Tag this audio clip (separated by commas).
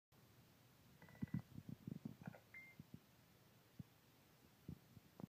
bleep